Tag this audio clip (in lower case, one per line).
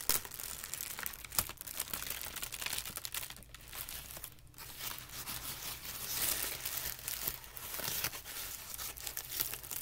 ripping paper